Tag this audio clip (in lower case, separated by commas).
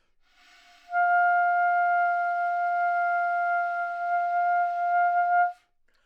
musical instrument, wind instrument, music